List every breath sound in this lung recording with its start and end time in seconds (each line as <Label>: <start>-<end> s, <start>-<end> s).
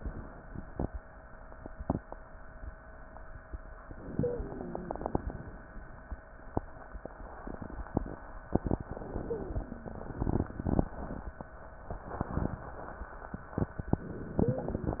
Inhalation: 3.89-5.39 s, 8.84-10.13 s, 14.06-15.00 s
Wheeze: 4.21-5.31 s, 9.22-10.32 s, 14.38-15.00 s